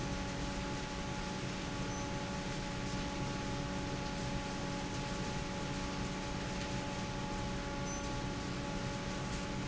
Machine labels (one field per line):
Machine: fan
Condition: normal